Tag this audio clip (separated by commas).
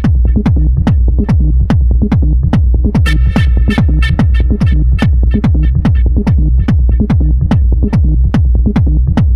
Electronic music, Techno, Music